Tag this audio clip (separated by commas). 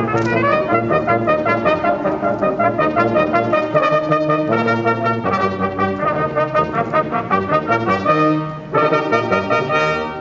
Trombone, Music, Brass instrument, playing trombone, Musical instrument